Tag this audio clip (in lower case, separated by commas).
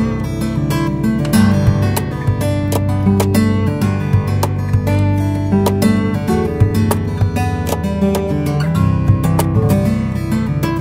plucked string instrument, music, guitar, musical instrument, acoustic guitar, strum